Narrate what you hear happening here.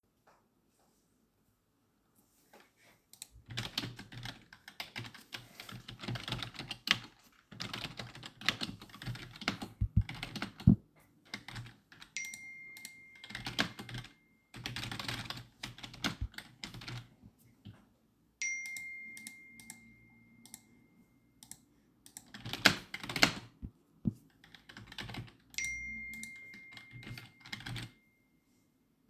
I was typing some text on my keyboard while i got 3 messages on my phone